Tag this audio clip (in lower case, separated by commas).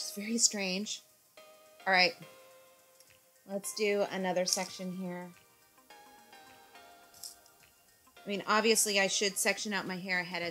hair dryer drying